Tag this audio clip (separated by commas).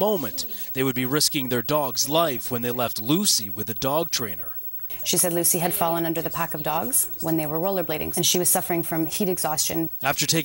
Speech